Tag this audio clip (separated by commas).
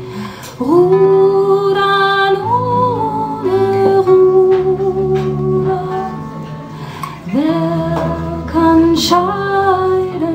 Music